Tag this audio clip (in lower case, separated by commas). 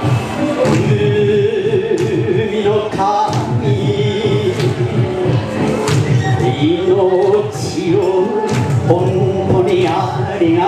male singing, music